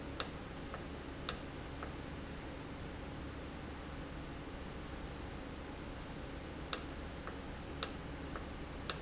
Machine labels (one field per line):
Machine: valve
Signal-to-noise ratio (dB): 0 dB